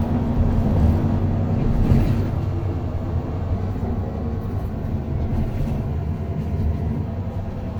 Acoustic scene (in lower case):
bus